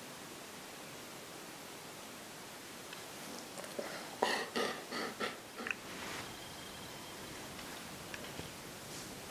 Dog snuffling and panting